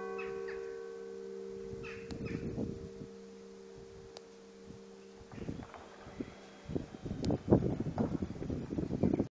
A clock chimes and a bird sings and flaps its wings